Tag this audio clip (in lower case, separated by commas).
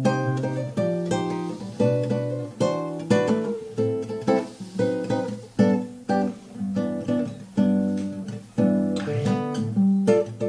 acoustic guitar, musical instrument, plucked string instrument, guitar, music